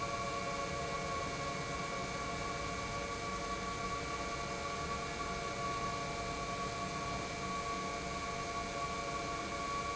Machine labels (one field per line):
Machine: pump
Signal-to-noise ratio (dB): -6 dB